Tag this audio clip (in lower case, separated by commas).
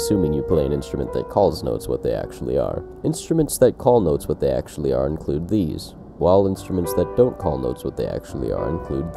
music, speech